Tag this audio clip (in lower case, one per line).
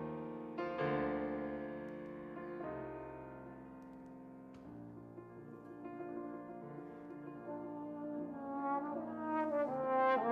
music
piano
trombone